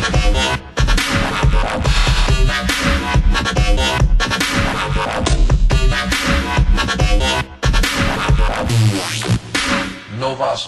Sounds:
music

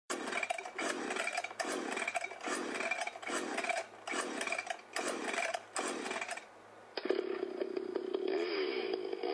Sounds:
chainsaw

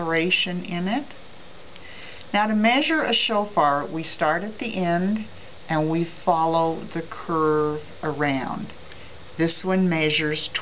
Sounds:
speech

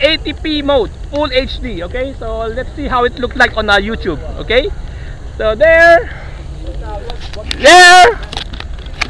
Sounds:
speech

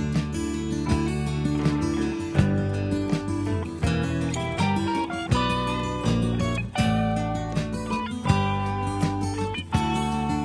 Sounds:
music

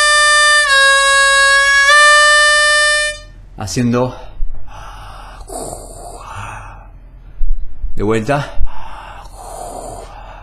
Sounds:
music
speech
harmonica

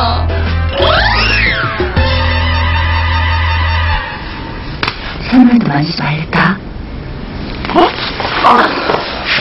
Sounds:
inside a small room
speech
music

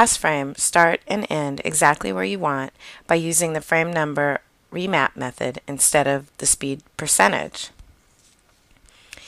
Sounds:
speech

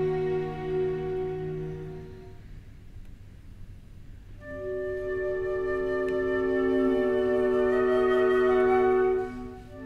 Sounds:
violin
musical instrument
music

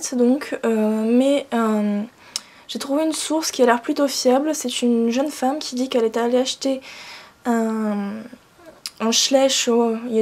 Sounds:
speech

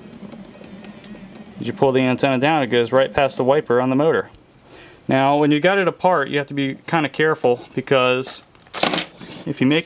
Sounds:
inside a small room
speech

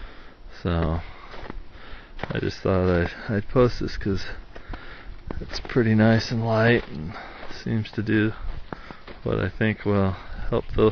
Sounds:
speech

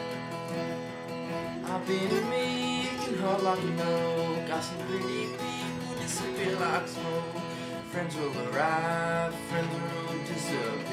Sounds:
music

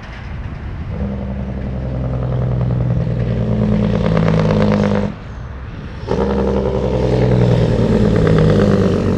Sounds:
outside, rural or natural
vehicle
truck

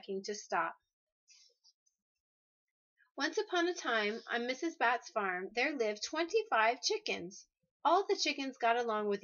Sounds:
speech

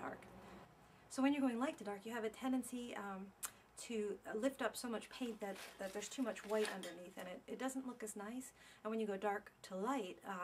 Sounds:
speech

